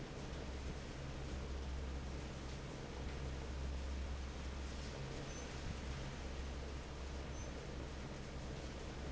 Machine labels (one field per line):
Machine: fan